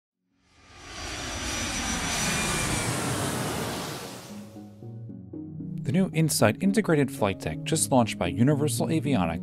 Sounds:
aircraft, fixed-wing aircraft

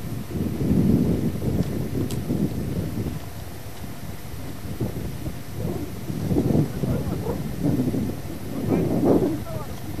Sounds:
domestic animals, speech, outside, rural or natural, animal

